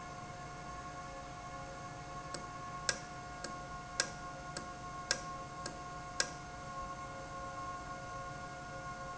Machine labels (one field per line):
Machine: valve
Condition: normal